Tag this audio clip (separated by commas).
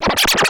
Musical instrument, Music, Scratching (performance technique)